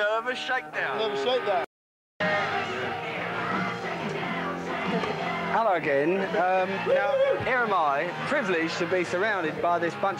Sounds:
music
jazz
rhythm and blues
speech
pop music

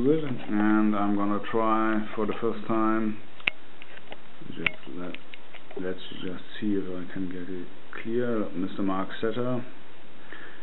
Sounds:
speech

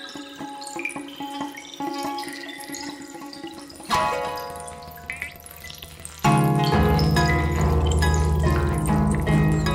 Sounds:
harp
plucked string instrument
music
musical instrument

